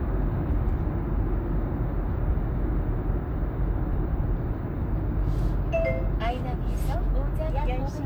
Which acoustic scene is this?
car